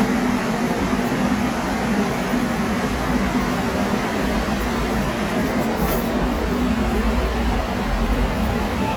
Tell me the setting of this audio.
subway station